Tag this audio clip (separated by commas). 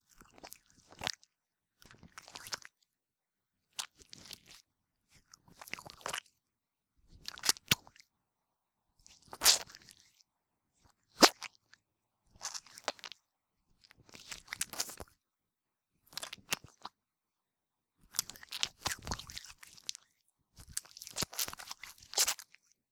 Hands